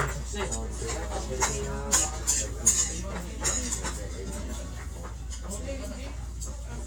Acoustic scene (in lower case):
restaurant